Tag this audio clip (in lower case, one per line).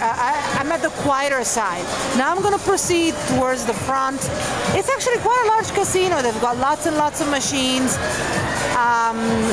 music
speech